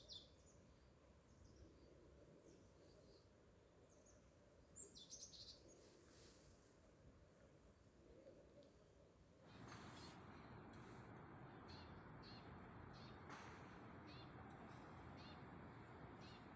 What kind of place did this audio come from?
park